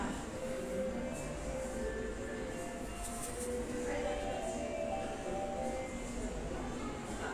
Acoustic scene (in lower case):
subway station